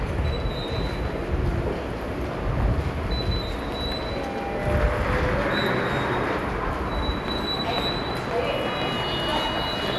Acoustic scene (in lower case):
subway station